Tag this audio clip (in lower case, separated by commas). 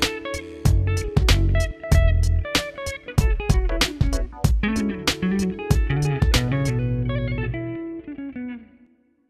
electric guitar